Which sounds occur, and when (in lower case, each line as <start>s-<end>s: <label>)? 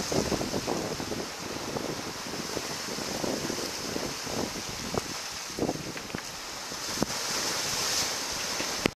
0.0s-5.1s: wind noise (microphone)
0.0s-8.9s: wind
5.4s-6.2s: wind noise (microphone)
6.6s-7.5s: wind noise (microphone)